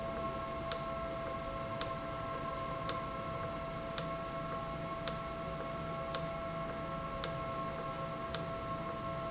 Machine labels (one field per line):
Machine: valve